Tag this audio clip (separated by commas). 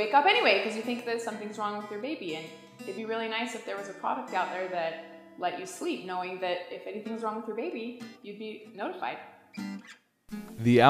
Speech, Music